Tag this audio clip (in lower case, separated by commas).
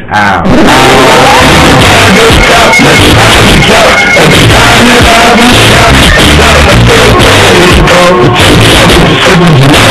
radio, music